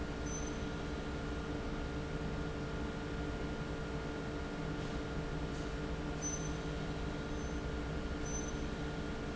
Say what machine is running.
fan